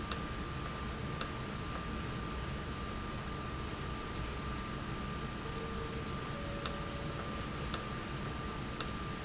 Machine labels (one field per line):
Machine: valve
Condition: normal